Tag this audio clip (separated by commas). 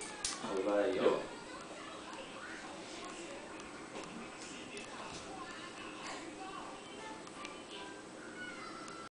Speech